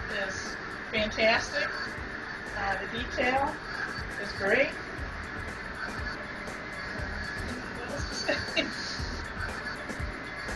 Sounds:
printer
speech

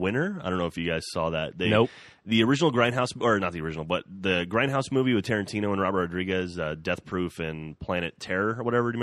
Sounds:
speech

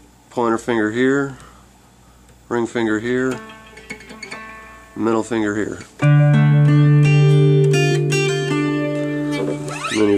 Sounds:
plucked string instrument
acoustic guitar
strum
speech
guitar
musical instrument
music

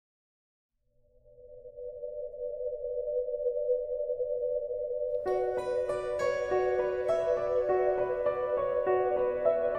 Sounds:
music
soundtrack music

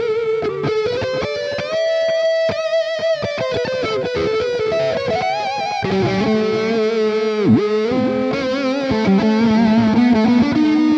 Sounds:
electric guitar
plucked string instrument
music
guitar
strum
musical instrument

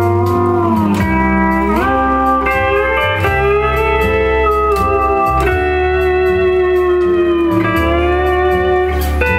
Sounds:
slide guitar
music

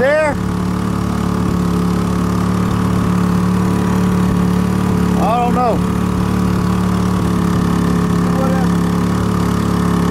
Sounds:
vehicle
speech
boat

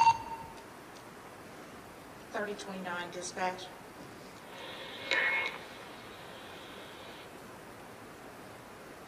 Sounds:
police radio chatter

